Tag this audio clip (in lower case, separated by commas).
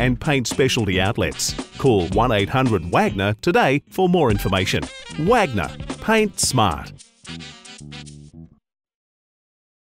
music, speech